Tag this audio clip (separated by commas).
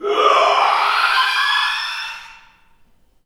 Shout, Yell, Human voice